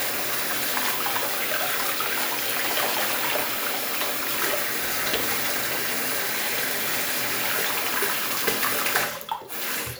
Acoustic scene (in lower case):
restroom